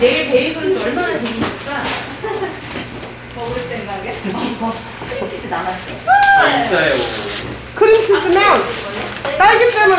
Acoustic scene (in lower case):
crowded indoor space